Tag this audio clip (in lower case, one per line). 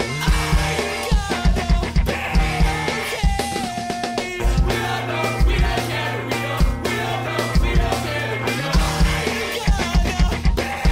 music